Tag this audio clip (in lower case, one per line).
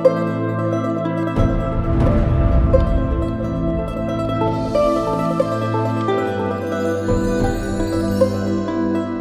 background music